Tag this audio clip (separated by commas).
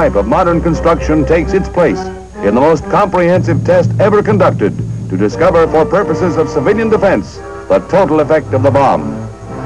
Music, Speech